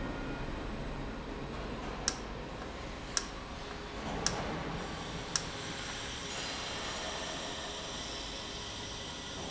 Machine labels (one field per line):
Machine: valve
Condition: normal